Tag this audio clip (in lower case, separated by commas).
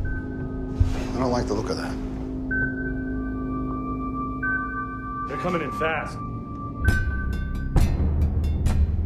speech, music